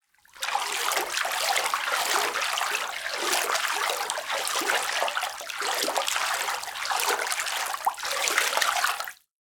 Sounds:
home sounds
bathtub (filling or washing)

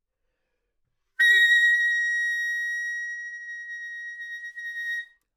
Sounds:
musical instrument
music
wind instrument

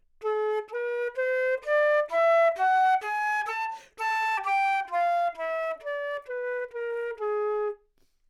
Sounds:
woodwind instrument
musical instrument
music

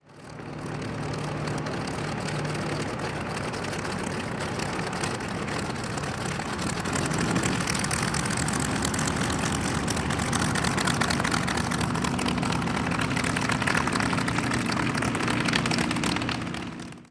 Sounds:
aircraft
engine
vehicle
idling

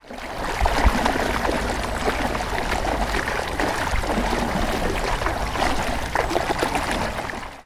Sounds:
water
stream

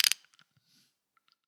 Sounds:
tools
ratchet
mechanisms

